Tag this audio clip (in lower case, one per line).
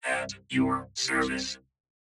speech
human voice